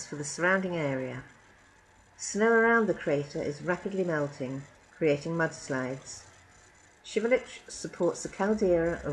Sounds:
speech

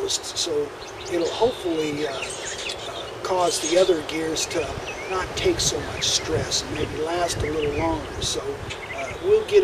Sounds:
speech

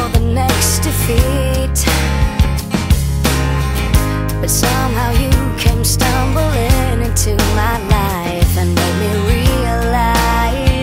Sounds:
music

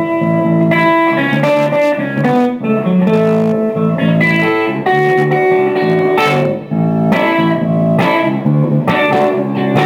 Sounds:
guitar, strum, musical instrument, electric guitar, plucked string instrument, music

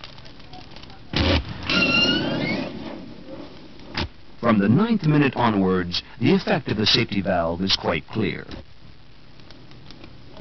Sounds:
speech, fire

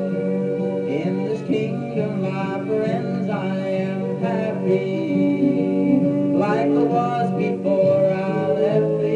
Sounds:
male singing, music

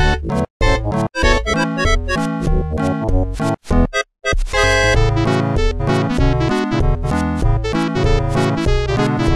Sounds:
sound effect, music

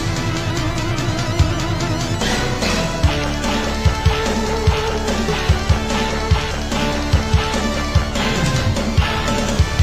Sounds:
music

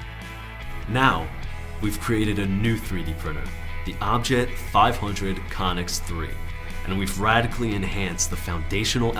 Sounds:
speech, music

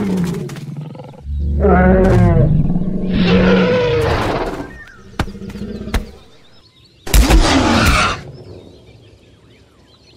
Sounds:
dinosaurs bellowing

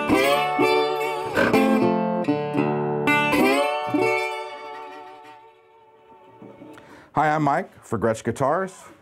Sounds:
music, speech, guitar, musical instrument, strum, plucked string instrument, acoustic guitar

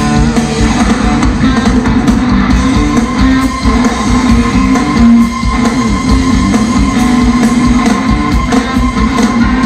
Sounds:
roll, music, rock and roll

